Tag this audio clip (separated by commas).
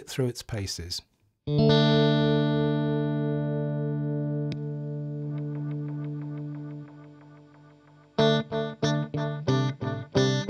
Music, Musical instrument, Chorus effect, Guitar